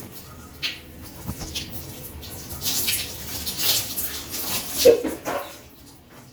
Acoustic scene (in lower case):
restroom